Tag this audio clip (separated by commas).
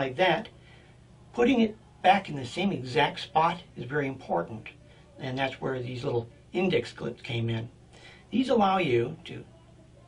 Speech